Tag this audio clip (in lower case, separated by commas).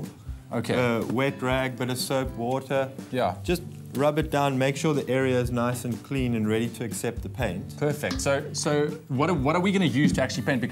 music, speech